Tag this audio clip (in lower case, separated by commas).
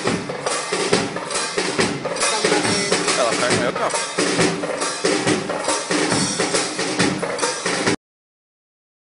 music, speech